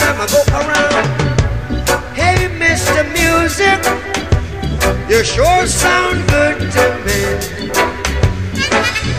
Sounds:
music

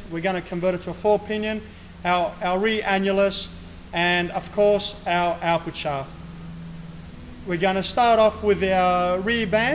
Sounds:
speech

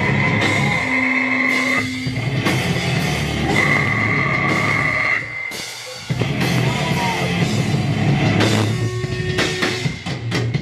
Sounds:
rock music
crowd
music

